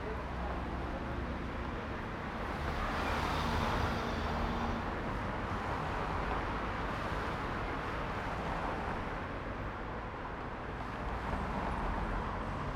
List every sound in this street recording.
car, car wheels rolling, car engine accelerating, people talking